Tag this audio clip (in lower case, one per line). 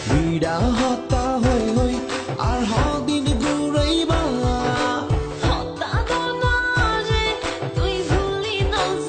music
theme music